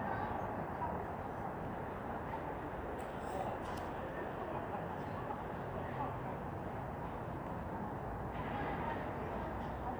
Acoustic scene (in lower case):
residential area